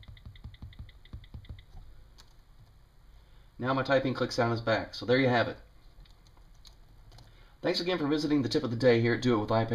Someone taps a screen and then a man speaks